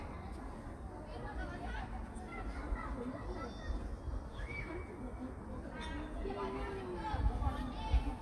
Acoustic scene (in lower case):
park